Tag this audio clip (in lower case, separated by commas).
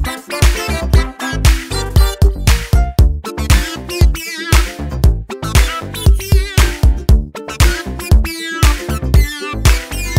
music